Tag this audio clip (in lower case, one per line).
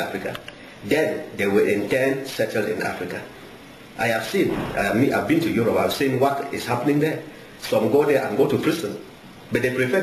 speech
man speaking